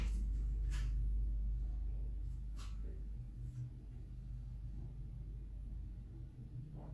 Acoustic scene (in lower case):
elevator